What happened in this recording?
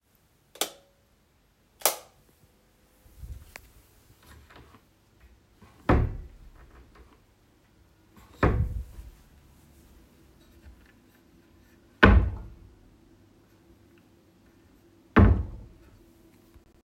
I turned on the light and opened and closed a few drawers